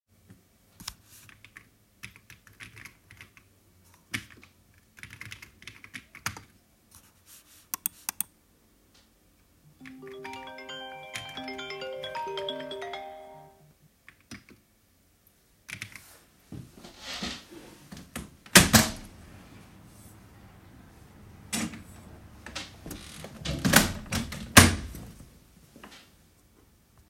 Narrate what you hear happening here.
I sat down at my desk and started clicking the mouse and typing on the keyboard. My phone started ringing and vibrating while I continued typing. The ringing stopped and I kept typing. I then stood up and opened the window and closed it again.